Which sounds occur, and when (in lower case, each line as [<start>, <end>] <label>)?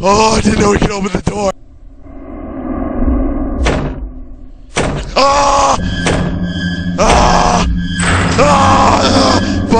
[0.00, 1.51] male speech
[0.00, 9.75] background noise
[0.00, 9.75] video game sound
[1.52, 9.75] music
[3.57, 3.98] generic impact sounds
[4.71, 5.15] generic impact sounds
[5.13, 5.76] moan
[6.05, 6.34] generic impact sounds
[6.96, 7.64] moan
[7.95, 8.37] generic impact sounds
[8.37, 9.38] moan
[9.42, 9.68] breathing